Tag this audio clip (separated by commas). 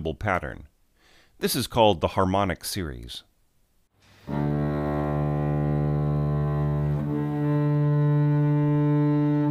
Speech, Music